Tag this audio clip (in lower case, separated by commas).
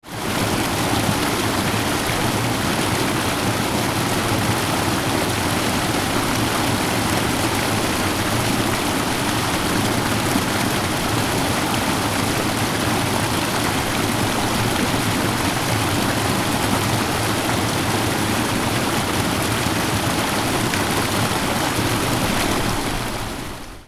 stream, water